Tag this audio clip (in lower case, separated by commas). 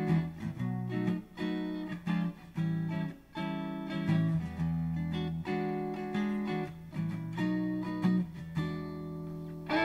plucked string instrument, music, musical instrument, guitar, electric guitar, acoustic guitar